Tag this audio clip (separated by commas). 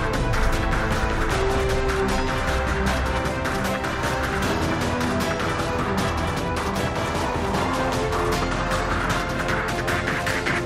Music